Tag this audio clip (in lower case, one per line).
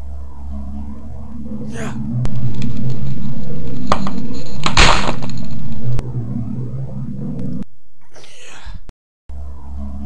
sound effect